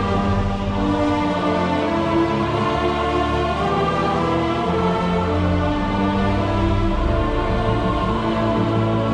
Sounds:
Theme music

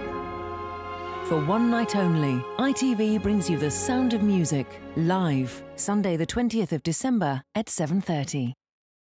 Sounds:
Music, Tender music, Speech

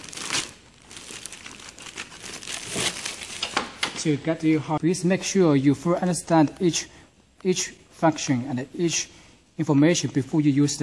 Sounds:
Speech

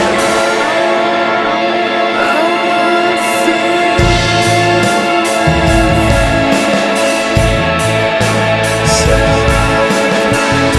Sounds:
Independent music

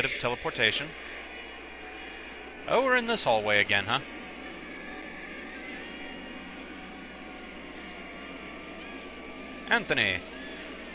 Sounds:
Speech

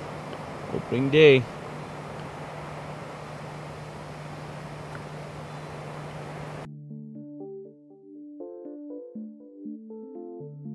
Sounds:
Speech

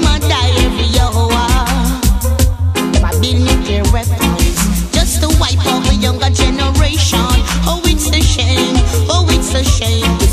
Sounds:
Music

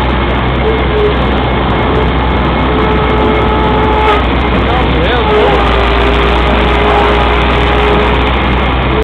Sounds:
Speech

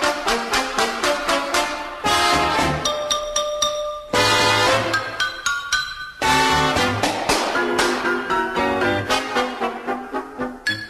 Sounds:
Music

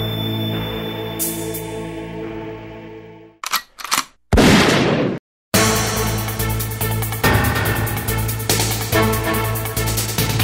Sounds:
Music

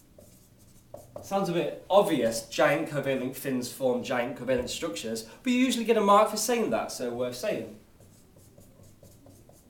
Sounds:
Writing, inside a small room, Speech

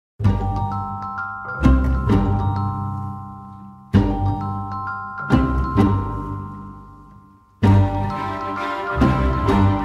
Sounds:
Music

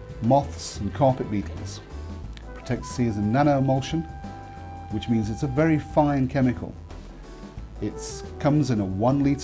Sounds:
Music, Speech

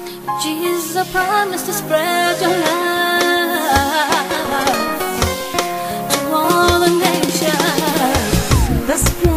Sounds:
Music, Gospel music

